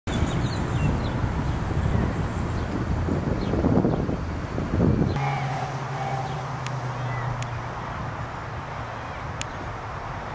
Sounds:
wind noise (microphone), wind

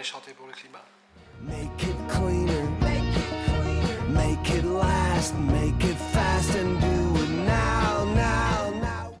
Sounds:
music, speech

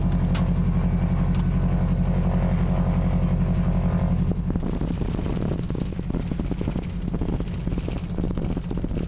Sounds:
aircraft, fixed-wing aircraft, outside, urban or man-made, vehicle

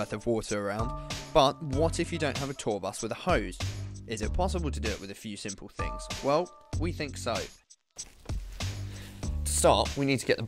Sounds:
music, speech

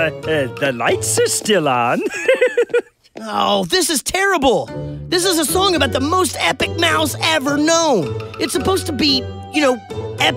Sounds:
music, speech

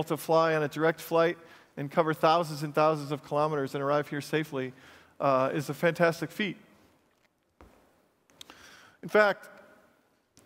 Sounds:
speech

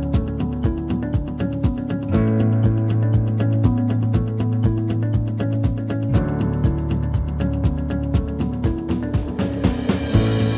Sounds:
music

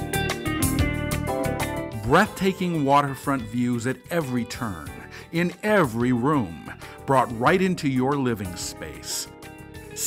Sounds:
speech, music

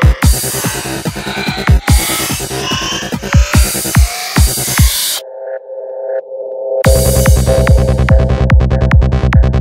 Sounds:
trance music, music, electronic music

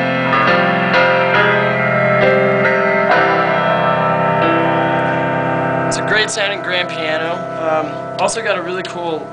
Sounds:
speech, music

